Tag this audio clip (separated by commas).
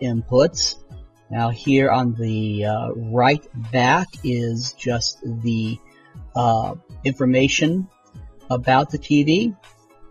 Speech, Music